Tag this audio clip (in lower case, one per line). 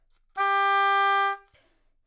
music
wind instrument
musical instrument